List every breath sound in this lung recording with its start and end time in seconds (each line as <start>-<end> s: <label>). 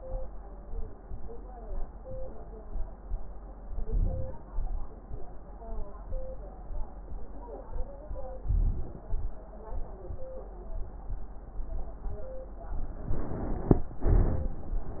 3.85-4.43 s: inhalation
3.85-4.43 s: crackles
4.55-4.96 s: exhalation
8.47-8.95 s: crackles
8.47-8.96 s: inhalation
9.09-9.35 s: exhalation